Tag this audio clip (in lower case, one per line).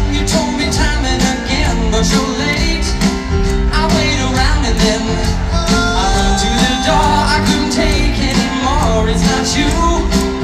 music